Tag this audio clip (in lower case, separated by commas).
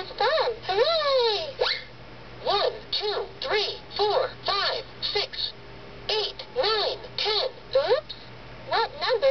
speech